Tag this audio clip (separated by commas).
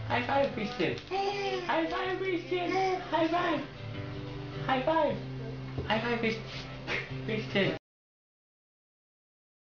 Music, Speech